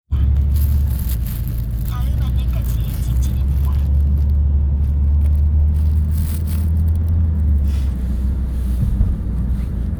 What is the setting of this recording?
car